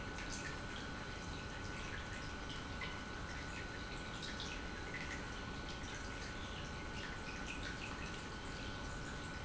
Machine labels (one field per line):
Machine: pump